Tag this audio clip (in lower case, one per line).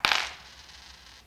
coin (dropping)
home sounds